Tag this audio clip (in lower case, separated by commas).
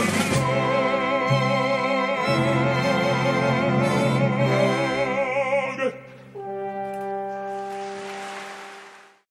music